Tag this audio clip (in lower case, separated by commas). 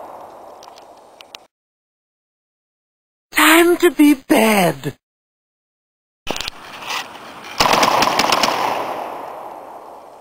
speech